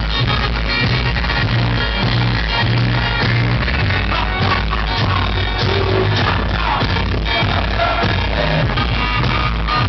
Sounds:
music

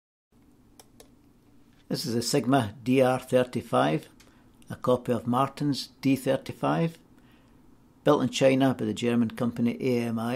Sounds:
inside a small room
speech

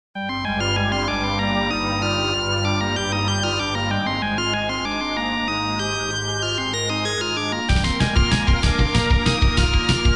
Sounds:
video game music

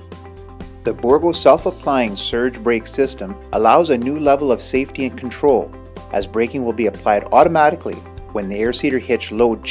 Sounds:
music
speech

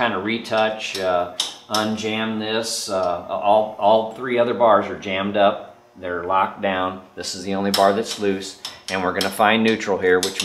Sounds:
speech
inside a large room or hall

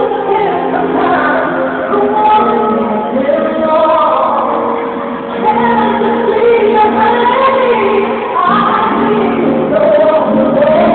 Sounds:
music

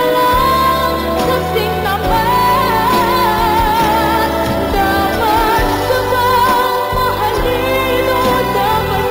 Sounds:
music

